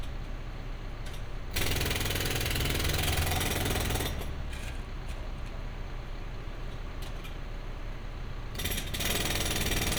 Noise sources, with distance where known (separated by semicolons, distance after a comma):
jackhammer, near